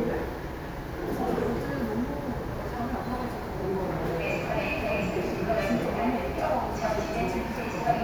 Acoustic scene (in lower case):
subway station